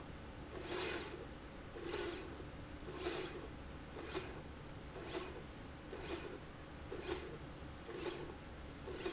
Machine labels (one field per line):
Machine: slide rail